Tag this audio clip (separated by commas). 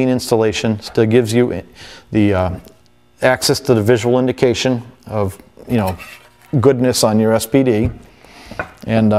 Speech